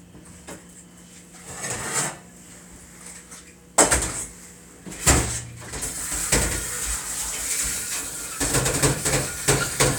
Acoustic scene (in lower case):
kitchen